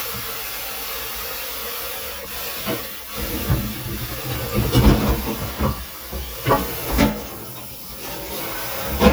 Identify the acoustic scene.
kitchen